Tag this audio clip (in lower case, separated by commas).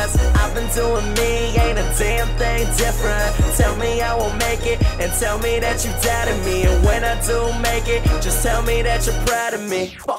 background music, exciting music, music